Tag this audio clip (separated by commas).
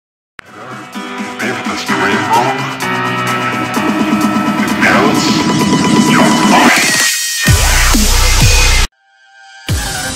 Dubstep